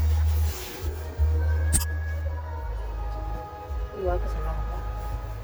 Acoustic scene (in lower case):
car